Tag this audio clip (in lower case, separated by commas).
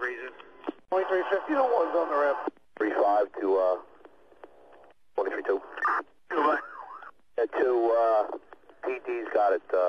speech